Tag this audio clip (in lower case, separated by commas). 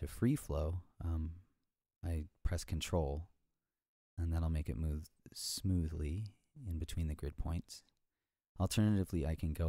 speech